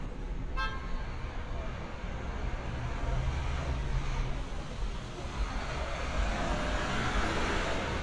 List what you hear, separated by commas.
large-sounding engine, car horn, person or small group talking